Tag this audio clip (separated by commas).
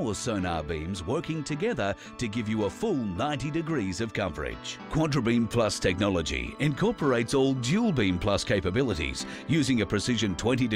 Music, Speech